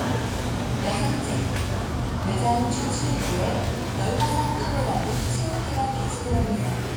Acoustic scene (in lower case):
crowded indoor space